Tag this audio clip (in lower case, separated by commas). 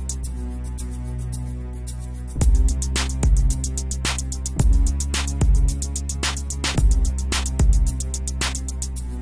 music